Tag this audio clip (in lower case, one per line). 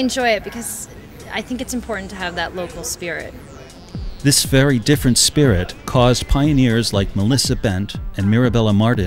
speech synthesizer